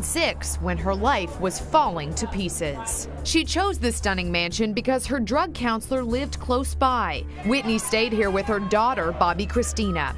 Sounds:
Speech

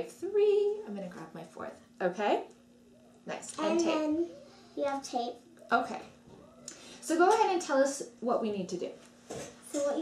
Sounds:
Speech

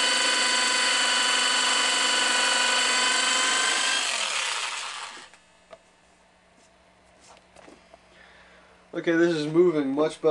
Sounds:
inside a large room or hall, Speech

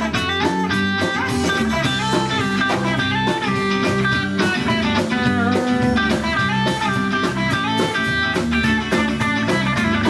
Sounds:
Music

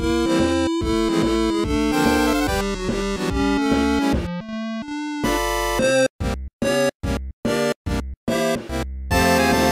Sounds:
Theme music, Music, Soundtrack music

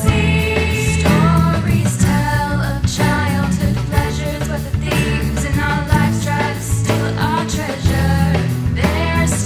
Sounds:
Jingle (music), Music

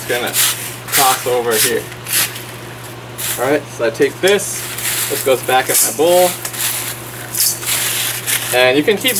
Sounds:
Speech

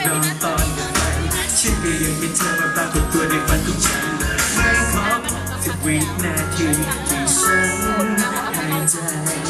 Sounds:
Speech, Music

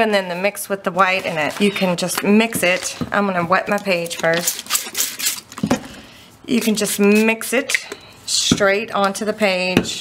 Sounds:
inside a small room, Speech

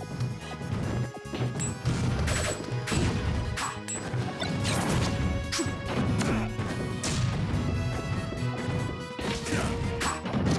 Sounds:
Music

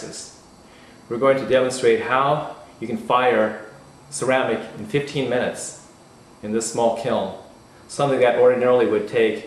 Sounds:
Speech

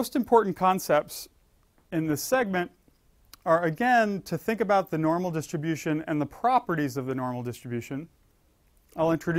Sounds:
Speech

